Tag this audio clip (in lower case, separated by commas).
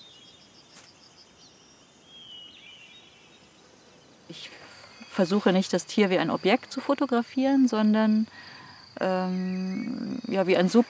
cattle mooing